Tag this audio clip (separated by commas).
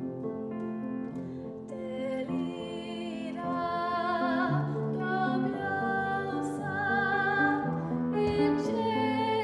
Female singing, Music